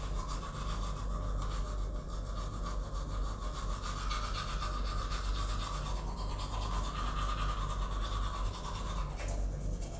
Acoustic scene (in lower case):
restroom